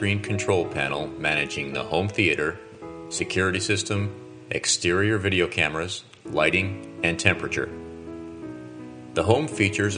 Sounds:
speech, music

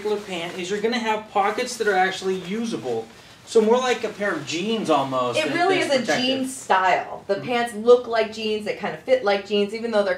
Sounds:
speech

